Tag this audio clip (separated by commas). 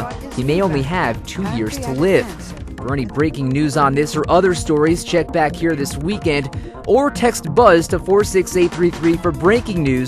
Speech, Music